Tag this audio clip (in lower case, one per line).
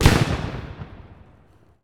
fireworks
explosion